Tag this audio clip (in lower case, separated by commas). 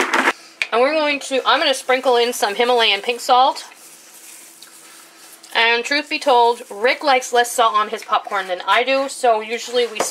speech, inside a small room